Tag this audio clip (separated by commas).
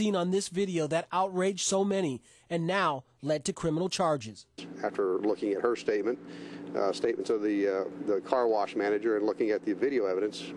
Speech